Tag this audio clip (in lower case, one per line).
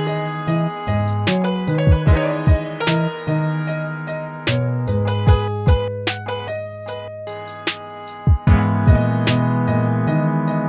music